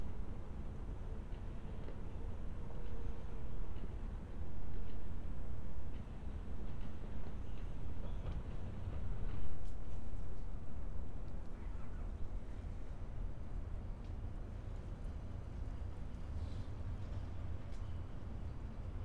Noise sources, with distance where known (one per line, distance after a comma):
engine of unclear size